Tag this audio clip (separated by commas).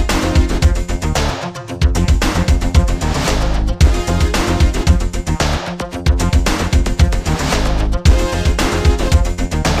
Music